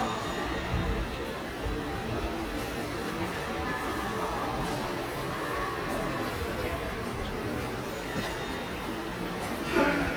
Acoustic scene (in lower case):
subway station